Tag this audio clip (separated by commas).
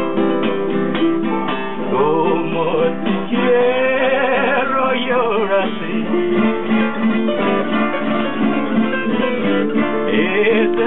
Strum, Musical instrument, Music, Flamenco, Plucked string instrument, Guitar